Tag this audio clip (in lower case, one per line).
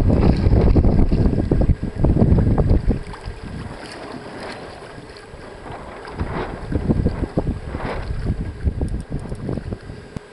boat
wind
sailing ship
wind noise (microphone)
sailing